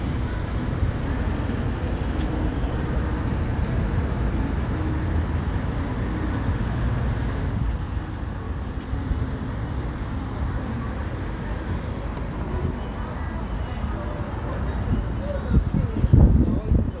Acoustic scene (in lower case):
street